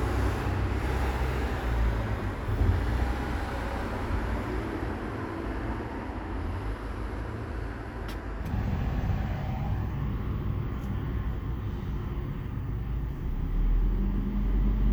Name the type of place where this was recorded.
street